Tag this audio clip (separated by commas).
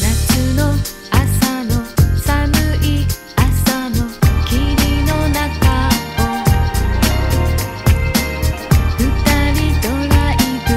Music